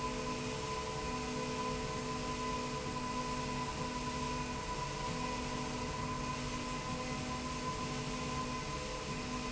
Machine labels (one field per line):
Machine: slide rail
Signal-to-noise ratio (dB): -6 dB